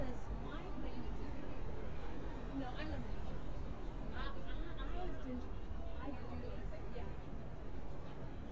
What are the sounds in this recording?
person or small group talking